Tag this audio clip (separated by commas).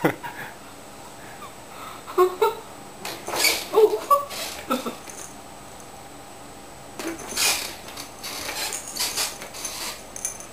Cat, Animal